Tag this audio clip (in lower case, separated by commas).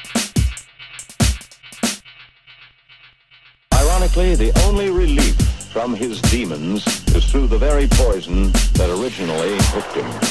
dubstep, music, speech, electronic music